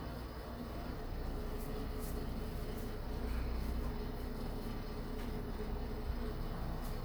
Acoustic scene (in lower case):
elevator